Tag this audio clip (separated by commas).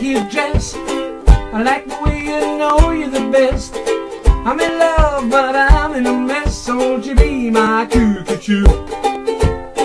Music